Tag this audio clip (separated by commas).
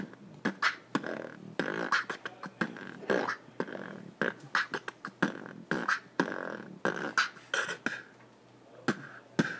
Beatboxing